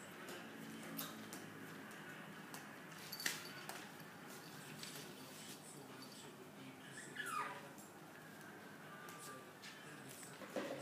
A small dog whimpers and yips